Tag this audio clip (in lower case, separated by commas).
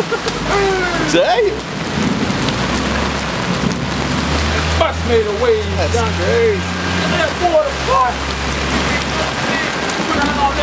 rain on surface, speech